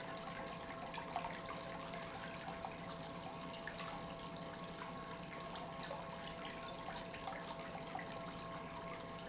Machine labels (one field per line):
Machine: pump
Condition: normal